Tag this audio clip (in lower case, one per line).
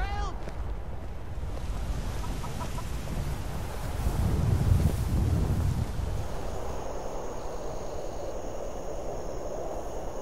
tap